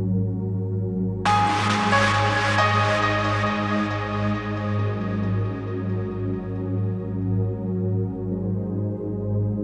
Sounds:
ambient music

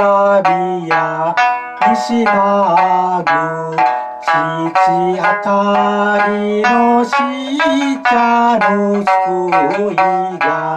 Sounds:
plucked string instrument
banjo
music
inside a small room
musical instrument

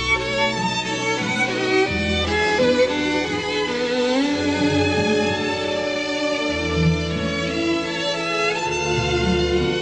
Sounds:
music
fiddle
musical instrument

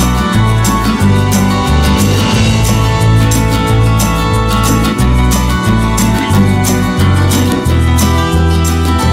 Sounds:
music

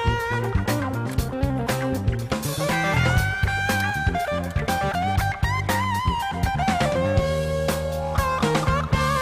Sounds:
music

